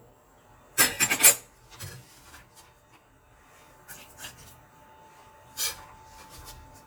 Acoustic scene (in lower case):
kitchen